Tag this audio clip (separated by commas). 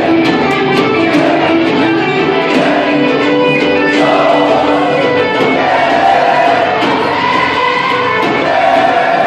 Music, Singing